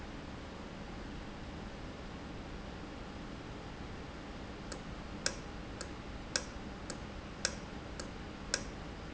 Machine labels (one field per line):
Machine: valve